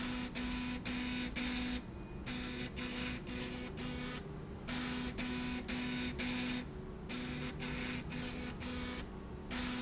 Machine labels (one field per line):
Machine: slide rail